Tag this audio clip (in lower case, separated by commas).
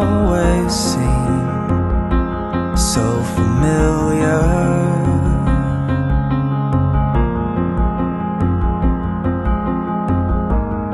music